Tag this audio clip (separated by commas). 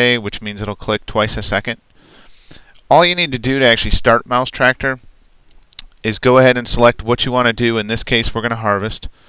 Speech